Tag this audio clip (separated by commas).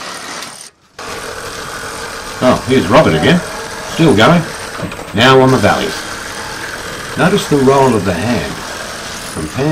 Speech